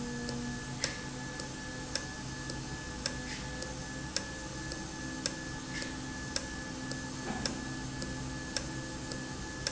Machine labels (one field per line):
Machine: valve